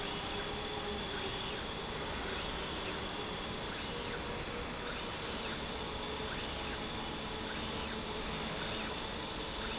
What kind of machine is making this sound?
slide rail